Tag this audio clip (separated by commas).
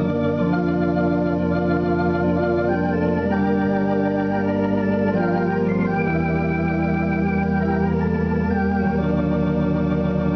Organ, Hammond organ, playing hammond organ